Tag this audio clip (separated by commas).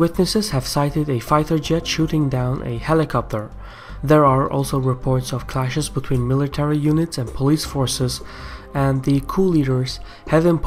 Speech